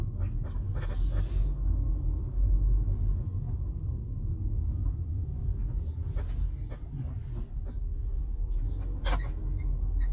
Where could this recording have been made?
in a car